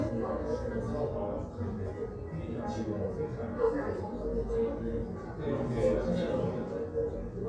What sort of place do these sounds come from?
crowded indoor space